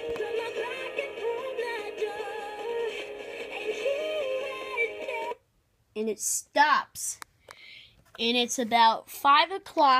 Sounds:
Speech, Music

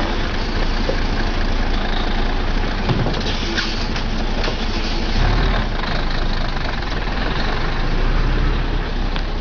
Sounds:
Truck, Vehicle

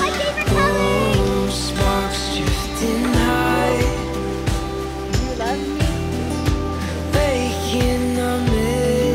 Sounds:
child singing

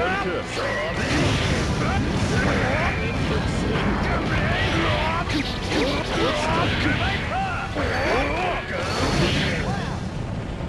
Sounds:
Music, Speech

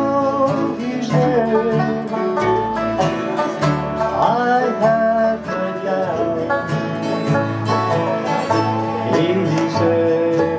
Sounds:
Wedding music, Music, Country

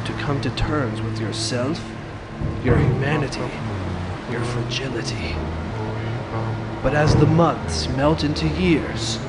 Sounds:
Speech

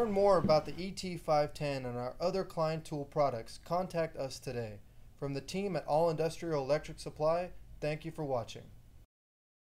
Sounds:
Speech

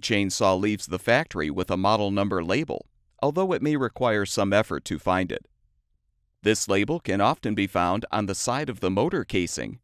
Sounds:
Speech

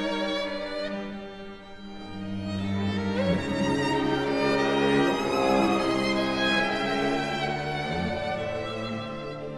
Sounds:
Sad music, Music

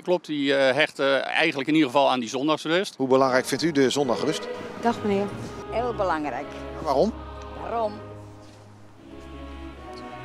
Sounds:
Speech, Music

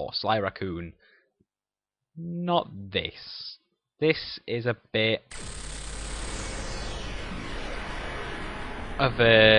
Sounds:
Music, Speech

